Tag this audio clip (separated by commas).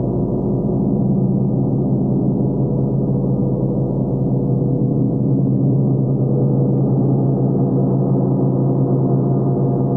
playing gong